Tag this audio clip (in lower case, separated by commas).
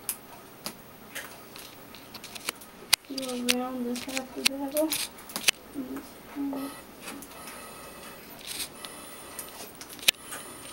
speech